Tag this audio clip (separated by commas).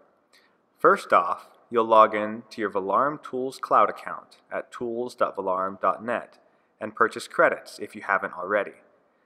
Speech